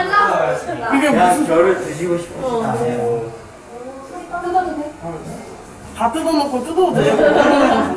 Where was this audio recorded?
in a crowded indoor space